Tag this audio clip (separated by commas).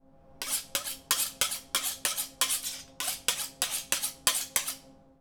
silverware, Domestic sounds